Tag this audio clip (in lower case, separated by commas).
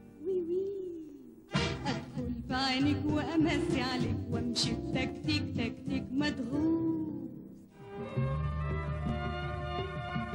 music